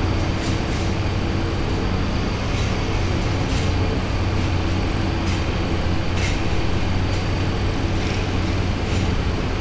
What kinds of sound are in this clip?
engine of unclear size